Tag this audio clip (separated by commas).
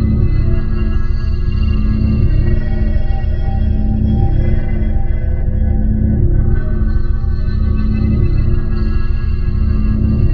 Music, Electronic music, Ambient music